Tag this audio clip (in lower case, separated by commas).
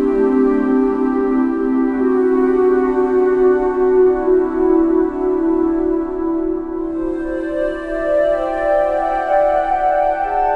music